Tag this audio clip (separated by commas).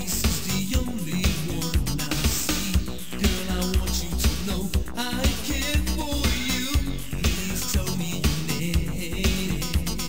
House music, Music